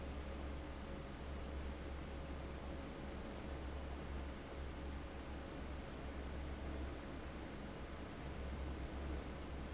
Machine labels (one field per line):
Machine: fan